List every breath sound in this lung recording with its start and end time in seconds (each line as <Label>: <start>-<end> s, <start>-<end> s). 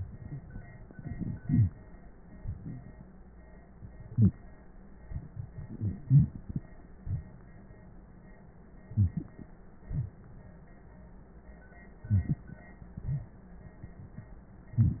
Inhalation: 8.86-9.54 s, 12.07-12.64 s
Exhalation: 9.83-10.61 s, 12.94-13.58 s
Wheeze: 8.93-9.25 s, 9.87-10.09 s, 12.09-12.35 s